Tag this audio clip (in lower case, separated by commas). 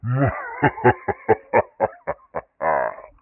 human voice, laughter